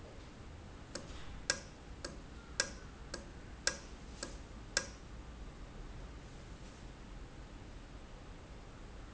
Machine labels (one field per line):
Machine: valve